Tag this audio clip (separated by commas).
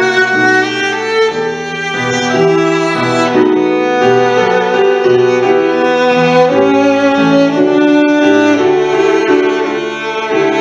Musical instrument, fiddle, Music